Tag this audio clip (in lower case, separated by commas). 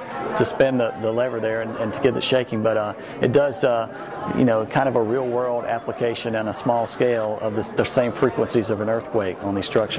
speech